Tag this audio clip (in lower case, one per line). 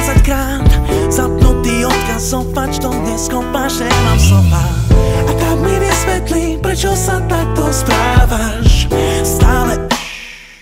music